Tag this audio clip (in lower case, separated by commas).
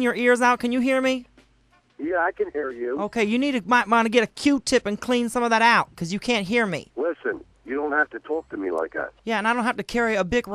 music, speech